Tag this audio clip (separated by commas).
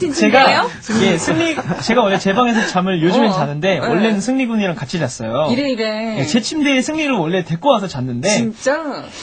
Speech, Radio